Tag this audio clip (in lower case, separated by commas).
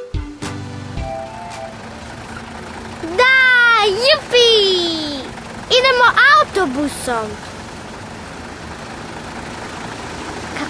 music for children, speech, music, kid speaking